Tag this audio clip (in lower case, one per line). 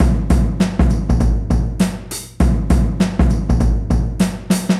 drum kit
music
musical instrument
drum
percussion